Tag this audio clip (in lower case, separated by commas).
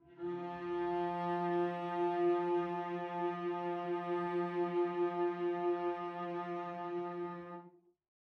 musical instrument, music, bowed string instrument